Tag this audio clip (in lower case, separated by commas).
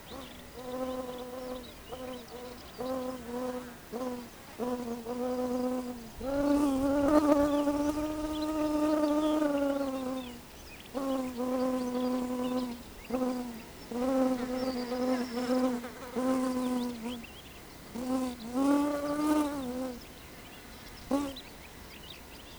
wild animals, animal, insect